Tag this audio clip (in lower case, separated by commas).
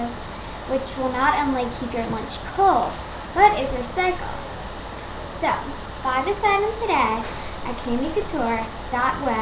speech